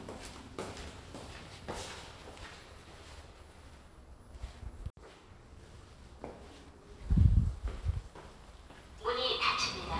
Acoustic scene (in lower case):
elevator